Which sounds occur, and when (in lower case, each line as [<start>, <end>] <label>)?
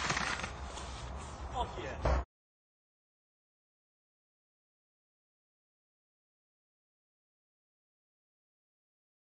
[0.00, 0.45] generic impact sounds
[0.00, 2.23] background noise
[0.59, 1.01] surface contact
[0.71, 0.78] generic impact sounds
[1.15, 1.50] surface contact
[1.49, 2.00] man speaking
[1.65, 1.95] surface contact
[2.02, 2.23] generic impact sounds